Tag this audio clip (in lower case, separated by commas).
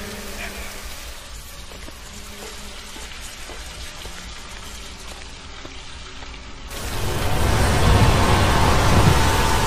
music, inside a large room or hall